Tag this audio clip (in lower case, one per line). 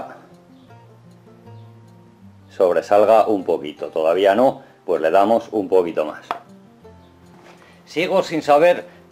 planing timber